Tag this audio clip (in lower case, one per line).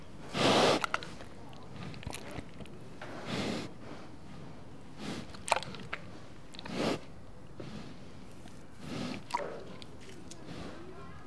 livestock
animal